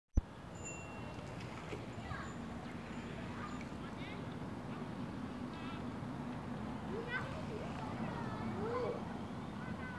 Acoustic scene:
residential area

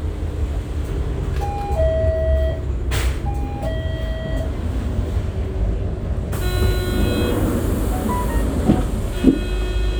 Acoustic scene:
bus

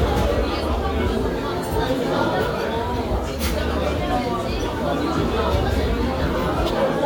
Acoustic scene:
restaurant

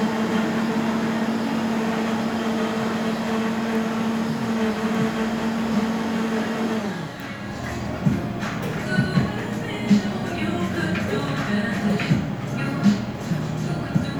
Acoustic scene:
cafe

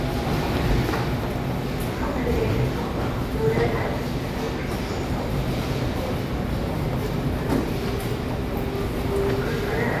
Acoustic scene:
subway station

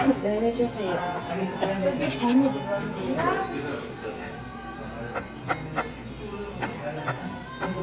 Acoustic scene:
cafe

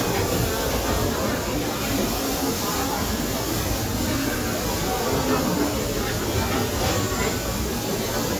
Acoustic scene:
restaurant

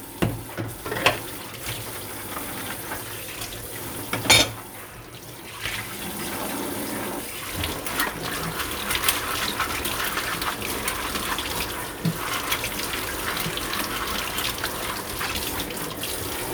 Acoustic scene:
kitchen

